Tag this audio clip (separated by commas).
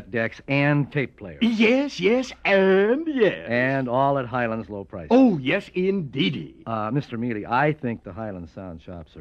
Speech